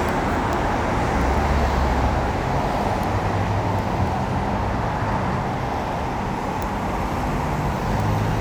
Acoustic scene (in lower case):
street